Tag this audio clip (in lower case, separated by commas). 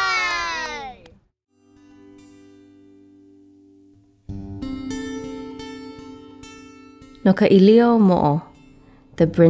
speech, music